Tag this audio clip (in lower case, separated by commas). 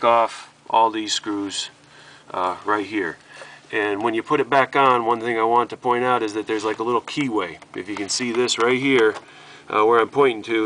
speech